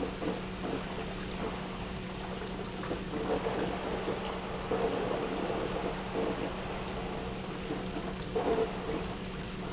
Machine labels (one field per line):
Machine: pump